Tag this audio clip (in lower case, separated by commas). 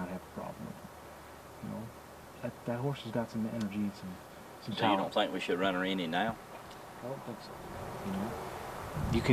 speech